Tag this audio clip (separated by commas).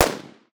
Explosion, gunfire